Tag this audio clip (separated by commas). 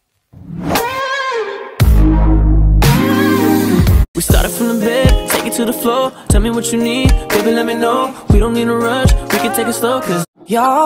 Music